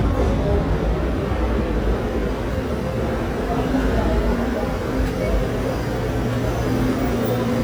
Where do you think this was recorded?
in a subway station